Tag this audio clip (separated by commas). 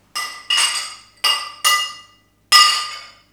Glass